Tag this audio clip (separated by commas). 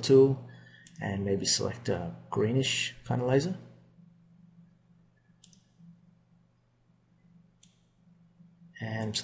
Speech